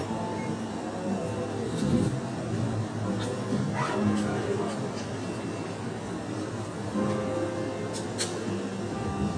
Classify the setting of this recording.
cafe